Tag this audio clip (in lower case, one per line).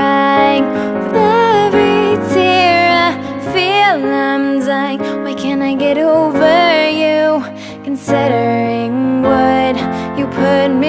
female singing
music